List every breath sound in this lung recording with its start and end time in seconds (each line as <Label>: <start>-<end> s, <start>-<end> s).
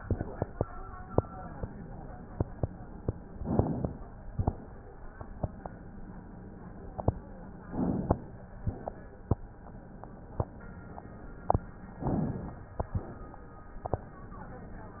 Inhalation: 3.33-3.98 s, 7.64-8.53 s, 11.95-12.74 s
Exhalation: 8.53-9.42 s, 12.75-13.79 s
Crackles: 3.33-3.98 s, 7.64-8.53 s, 8.53-9.42 s, 11.95-12.71 s, 12.71-13.80 s